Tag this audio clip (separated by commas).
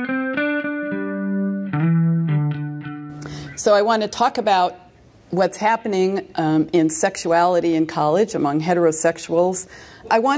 Speech, Music